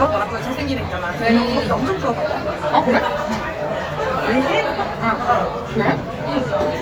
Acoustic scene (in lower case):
crowded indoor space